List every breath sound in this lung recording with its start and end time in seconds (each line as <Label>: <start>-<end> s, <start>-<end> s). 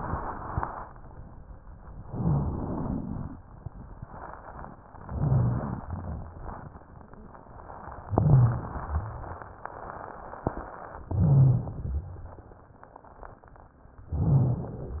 Inhalation: 2.02-3.33 s, 5.02-5.83 s, 8.07-8.88 s, 11.01-11.98 s, 14.08-15.00 s
Exhalation: 5.83-6.62 s, 8.93-9.46 s, 11.98-12.58 s
Rhonchi: 2.02-2.68 s, 5.02-5.83 s, 5.87-6.66 s, 8.07-8.88 s, 8.93-9.46 s, 11.01-11.98 s, 12.00-12.60 s, 14.08-14.84 s